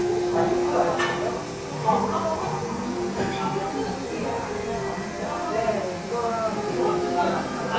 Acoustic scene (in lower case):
cafe